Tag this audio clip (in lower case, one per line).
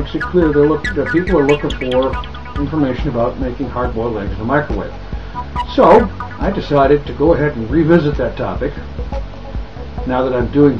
music
speech